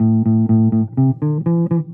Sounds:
Bass guitar, Music, Musical instrument, Plucked string instrument, Guitar

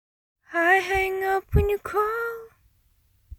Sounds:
Human voice, Singing, Female singing

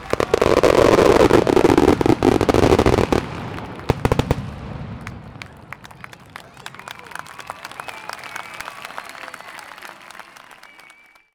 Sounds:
Explosion, Fireworks, Crowd, Human group actions

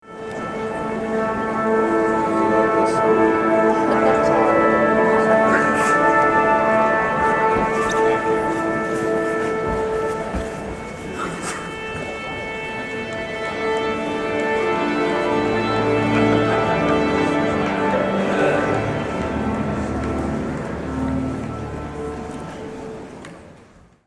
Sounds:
Musical instrument, Music

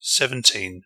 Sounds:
Human voice, Male speech, Speech

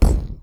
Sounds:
thud

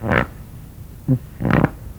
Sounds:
Fart

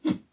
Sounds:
swish

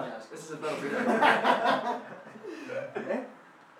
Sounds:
Human voice, Laughter

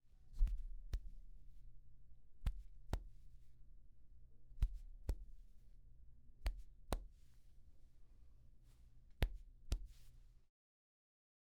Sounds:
Hands

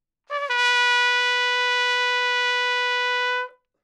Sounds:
Trumpet, Musical instrument, Music, Brass instrument

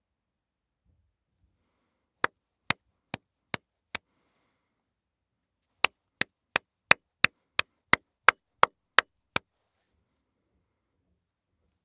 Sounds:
Hands, Clapping

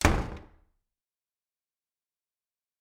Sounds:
home sounds, Door, Slam

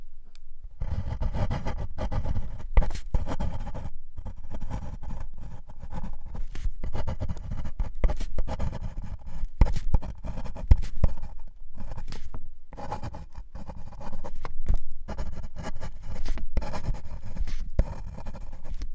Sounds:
Domestic sounds, Writing

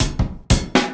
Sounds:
Percussion, Drum, Music, Drum kit, Musical instrument

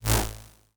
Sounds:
swish

